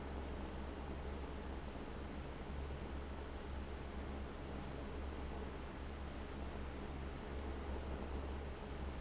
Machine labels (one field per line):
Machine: fan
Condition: abnormal